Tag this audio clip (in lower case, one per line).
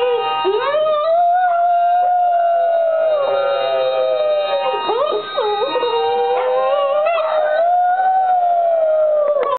music